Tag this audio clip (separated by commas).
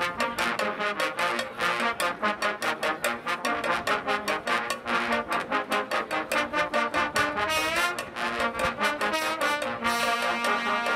playing trombone